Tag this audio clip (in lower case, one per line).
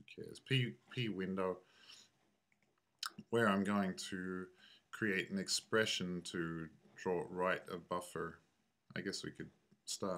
speech